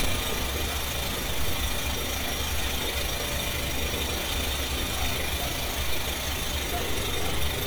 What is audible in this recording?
unidentified impact machinery